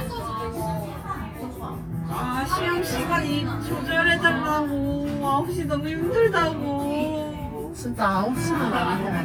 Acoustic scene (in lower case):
crowded indoor space